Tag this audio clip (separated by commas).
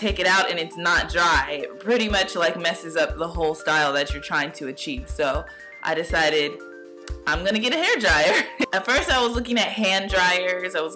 Music, Speech